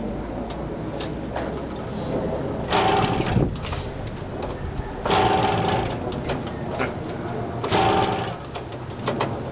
Vehicle engine starting